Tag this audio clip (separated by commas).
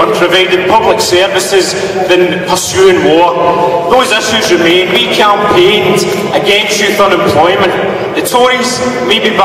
Narration, Speech, man speaking